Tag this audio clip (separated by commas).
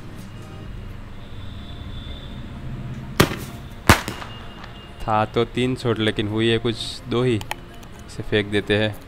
lighting firecrackers